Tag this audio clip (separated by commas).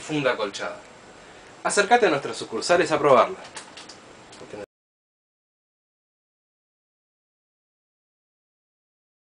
Speech